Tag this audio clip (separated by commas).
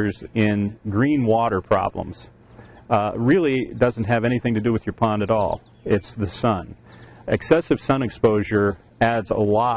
Speech